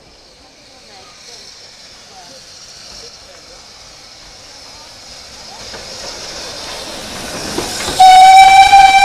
People speak and then a train whistle blows